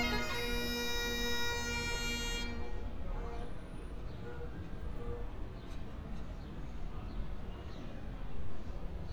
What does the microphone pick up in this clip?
music from a fixed source